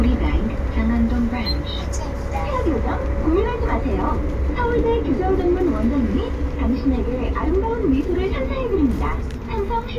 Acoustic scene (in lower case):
bus